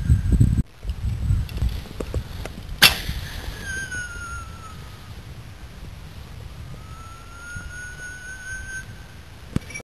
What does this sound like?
The muffling sound of wind then a loud click followed by a whistling noise